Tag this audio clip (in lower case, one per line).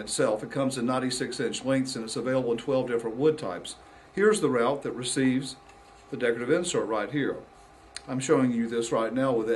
speech